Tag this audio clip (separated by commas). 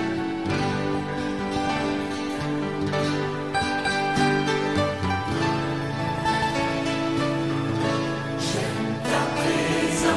Music